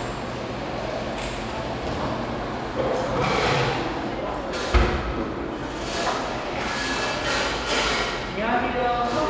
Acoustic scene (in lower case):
cafe